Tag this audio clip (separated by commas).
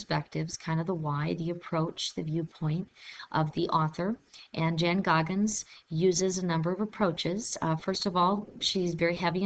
Speech